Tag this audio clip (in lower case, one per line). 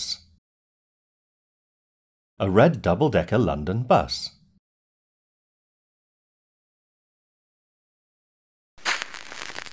speech
silence